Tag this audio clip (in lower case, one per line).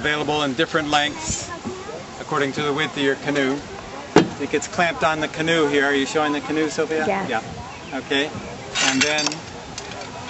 speech
vehicle